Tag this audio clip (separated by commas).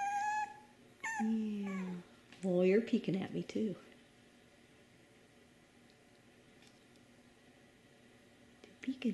Speech, Animal, Dog, pets